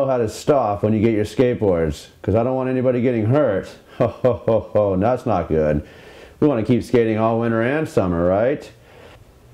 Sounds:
speech

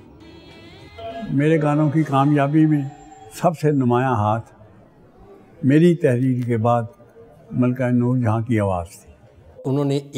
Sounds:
music
speech

